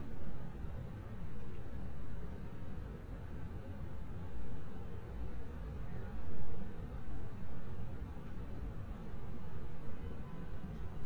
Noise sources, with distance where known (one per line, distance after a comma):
car horn
person or small group talking